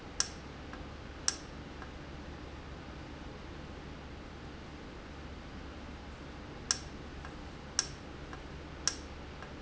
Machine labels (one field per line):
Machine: valve